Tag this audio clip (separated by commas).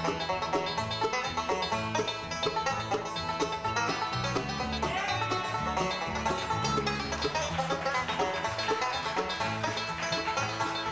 Music, Bluegrass